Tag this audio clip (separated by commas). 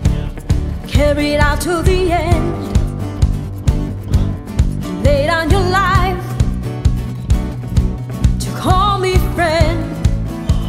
Funk, Music